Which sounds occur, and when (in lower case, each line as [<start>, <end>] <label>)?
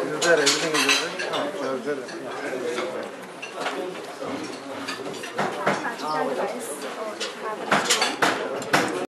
[0.00, 1.01] man speaking
[0.00, 7.52] conversation
[0.00, 8.98] mechanisms
[0.15, 0.28] generic impact sounds
[0.39, 0.61] generic impact sounds
[0.71, 1.00] generic impact sounds
[1.13, 1.21] generic impact sounds
[1.28, 1.38] generic impact sounds
[1.53, 3.07] man speaking
[1.59, 1.67] generic impact sounds
[1.82, 1.88] generic impact sounds
[2.02, 2.09] generic impact sounds
[2.72, 2.83] generic impact sounds
[2.97, 3.01] tick
[3.14, 3.20] generic impact sounds
[3.38, 3.48] generic impact sounds
[3.43, 4.43] man speaking
[3.56, 3.67] generic impact sounds
[3.97, 4.03] tick
[4.35, 4.52] generic impact sounds
[4.79, 4.93] generic impact sounds
[5.08, 5.21] generic impact sounds
[5.33, 5.46] generic impact sounds
[5.62, 6.73] female speech
[5.63, 5.80] generic impact sounds
[5.92, 6.38] man speaking
[5.98, 6.13] generic impact sounds
[6.39, 6.46] generic impact sounds
[6.75, 6.86] generic impact sounds
[6.88, 7.15] female speech
[7.14, 7.24] generic impact sounds
[7.38, 7.52] female speech
[7.68, 8.09] generic impact sounds
[7.84, 8.05] human voice
[8.19, 8.43] generic impact sounds
[8.33, 8.64] human voice
[8.55, 8.61] generic impact sounds
[8.70, 8.96] generic impact sounds